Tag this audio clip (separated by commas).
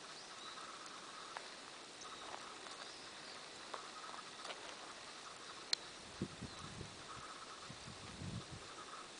Animal, outside, rural or natural